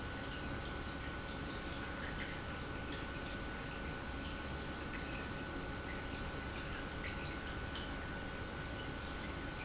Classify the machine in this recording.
pump